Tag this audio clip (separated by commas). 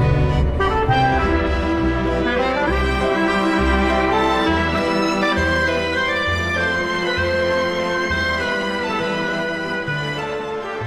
Music